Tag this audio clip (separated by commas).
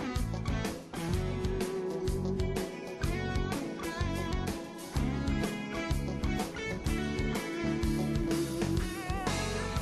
Music